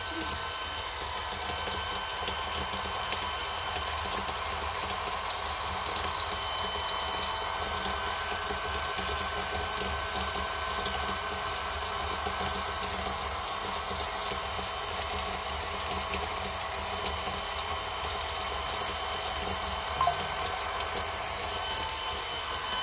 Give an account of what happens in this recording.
I was doing the dishes while vacuum cleaner was working near me. At the same time I received notification on my phone. My girlfriend was coughing at the background